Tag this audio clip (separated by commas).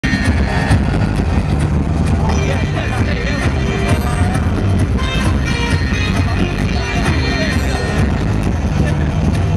outside, urban or man-made, Music, Speech